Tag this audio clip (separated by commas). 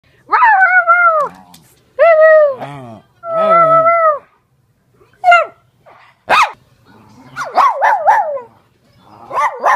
pets, Bark, Bow-wow, Animal, Dog